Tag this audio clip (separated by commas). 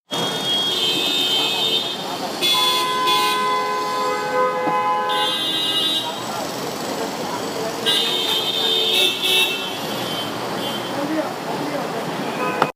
Vehicle, roadway noise, Engine, Vehicle horn, Car, Human group actions, Chatter, Alarm, Motor vehicle (road)